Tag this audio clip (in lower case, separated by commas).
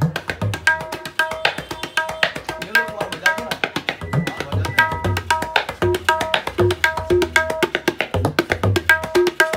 playing tabla